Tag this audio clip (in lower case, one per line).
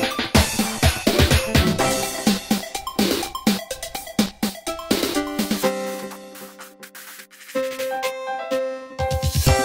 music